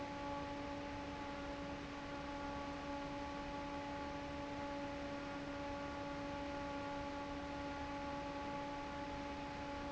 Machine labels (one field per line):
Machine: fan